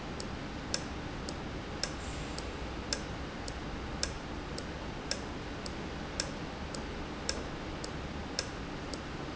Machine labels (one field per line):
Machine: valve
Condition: normal